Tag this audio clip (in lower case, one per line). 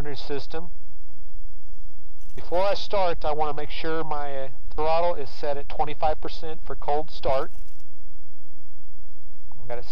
speech